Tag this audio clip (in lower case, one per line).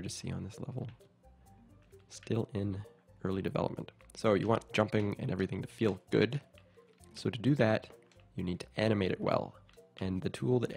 speech